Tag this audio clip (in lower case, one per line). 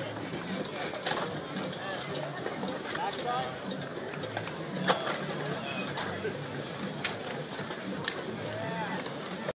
speech